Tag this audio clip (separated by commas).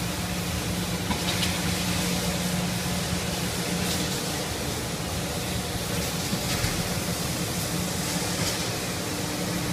Vehicle